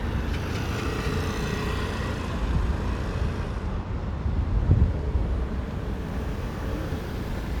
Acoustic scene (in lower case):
residential area